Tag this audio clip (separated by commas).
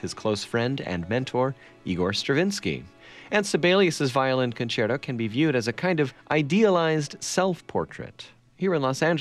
Speech, Music